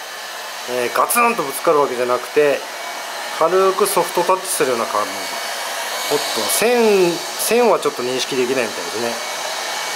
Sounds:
vacuum cleaner cleaning floors

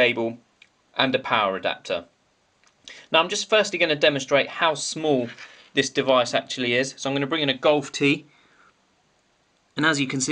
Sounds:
speech

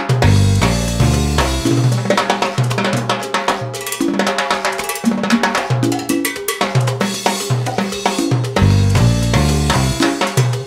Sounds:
playing timbales

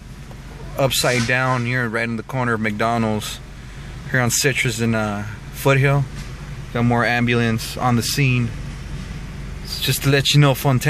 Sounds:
vehicle, motor vehicle (road), speech

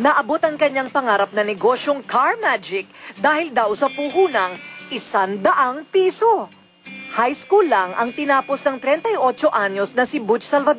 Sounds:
speech, music

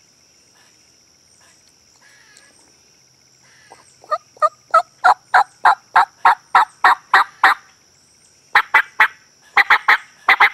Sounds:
turkey gobbling

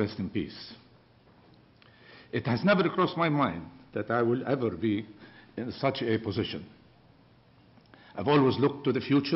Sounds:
speech, male speech, narration

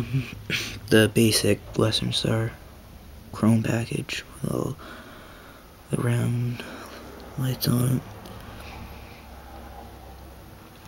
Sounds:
speech

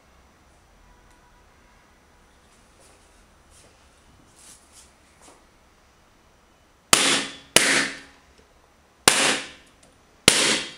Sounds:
inside a small room, silence

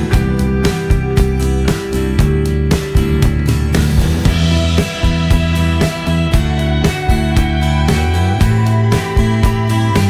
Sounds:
music

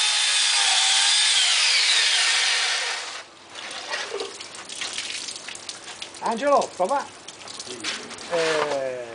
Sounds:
chainsaw, speech

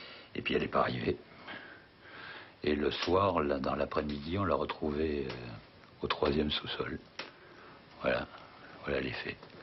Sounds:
speech

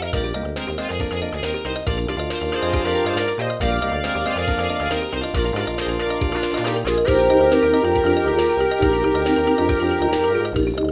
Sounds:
music, video game music, funny music

